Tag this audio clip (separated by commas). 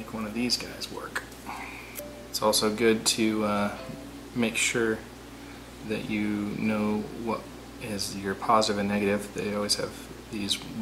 inside a small room, Speech